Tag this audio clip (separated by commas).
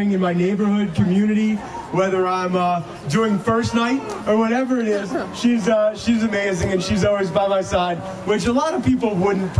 Speech, Crowd